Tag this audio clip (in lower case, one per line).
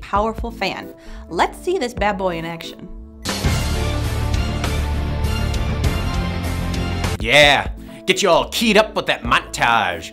speech
music